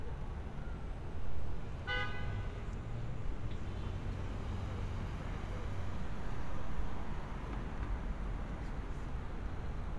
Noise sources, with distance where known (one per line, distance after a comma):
car horn, near
person or small group talking, far